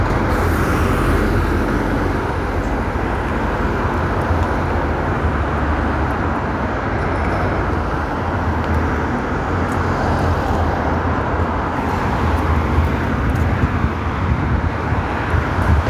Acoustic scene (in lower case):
street